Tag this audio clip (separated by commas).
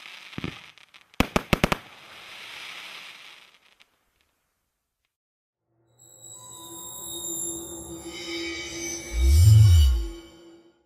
Music, Fireworks